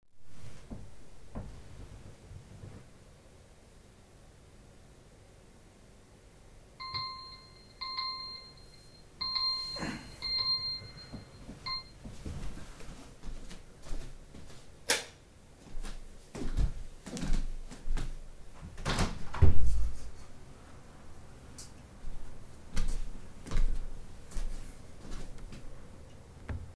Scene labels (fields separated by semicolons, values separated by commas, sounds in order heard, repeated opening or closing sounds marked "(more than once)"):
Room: bedroom; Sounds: phone ringing, footsteps, light switch, window